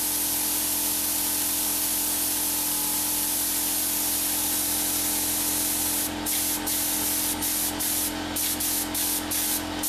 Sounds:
spray

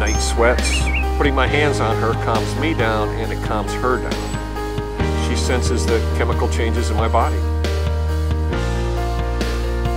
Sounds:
speech, music

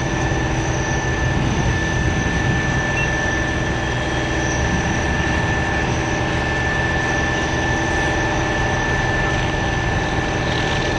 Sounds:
vehicle

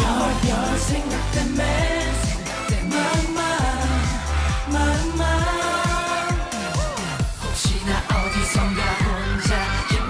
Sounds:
music, music of asia, singing

